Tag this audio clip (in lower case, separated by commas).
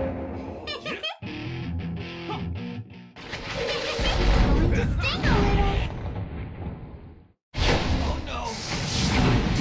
music, speech